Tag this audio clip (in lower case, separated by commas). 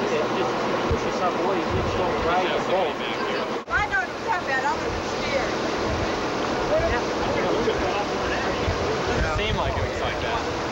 speech, outside, rural or natural